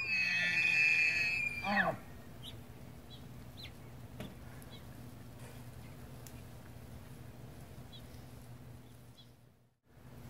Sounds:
elk bugling

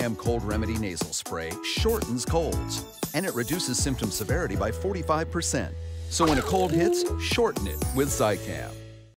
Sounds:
music
speech

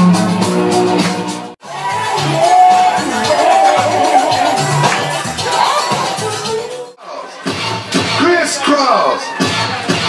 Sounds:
music
speech

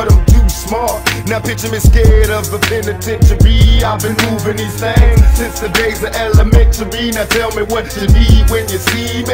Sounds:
music

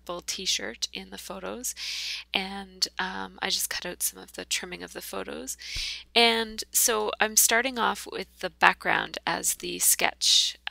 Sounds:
speech

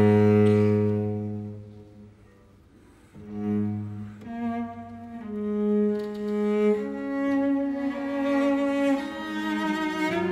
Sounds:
bowed string instrument
cello
double bass

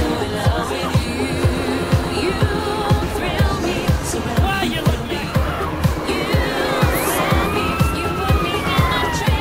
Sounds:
emergency vehicle
police car (siren)
siren

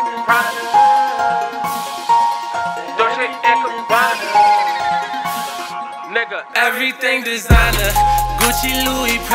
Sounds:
pop music
funk
music

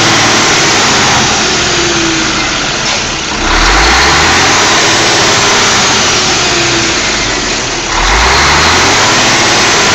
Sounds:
truck
motor vehicle (road)
vehicle

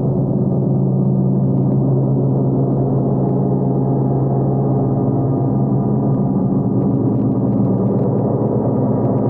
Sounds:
playing gong

